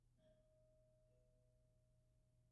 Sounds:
alarm, domestic sounds, doorbell, door

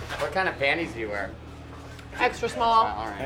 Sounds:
conversation, human voice, speech

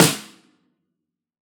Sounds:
snare drum, musical instrument, music, drum, percussion

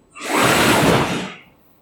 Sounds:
mechanisms

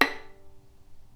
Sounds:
music, bowed string instrument, musical instrument

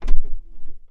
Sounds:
car, motor vehicle (road), vehicle

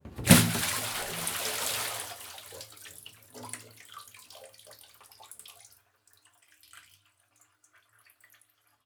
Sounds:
splash, domestic sounds, liquid, bathtub (filling or washing)

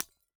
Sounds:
glass, shatter, hammer, tools

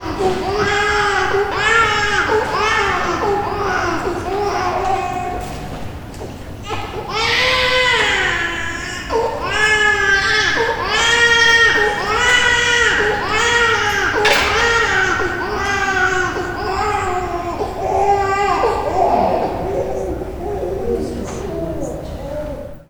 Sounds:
human voice, sobbing

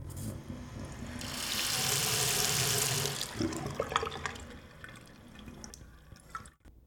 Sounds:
sink (filling or washing), home sounds

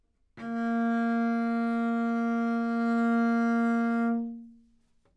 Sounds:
bowed string instrument, music, musical instrument

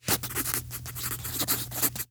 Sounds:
home sounds, writing

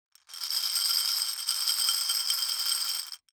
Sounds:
glass

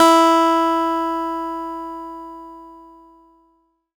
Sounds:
plucked string instrument, musical instrument, acoustic guitar, music, guitar

